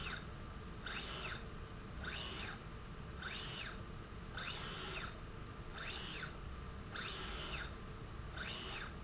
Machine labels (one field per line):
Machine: slide rail